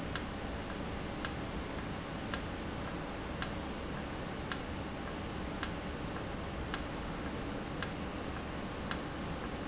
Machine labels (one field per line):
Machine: valve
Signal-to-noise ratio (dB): -6 dB